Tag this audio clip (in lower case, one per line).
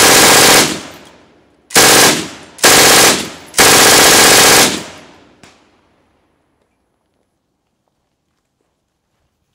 machine gun shooting